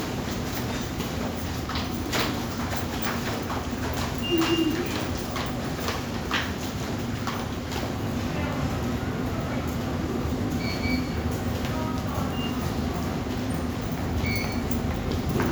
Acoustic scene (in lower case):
subway station